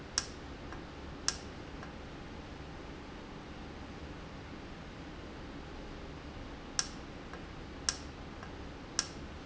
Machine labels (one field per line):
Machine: valve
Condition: normal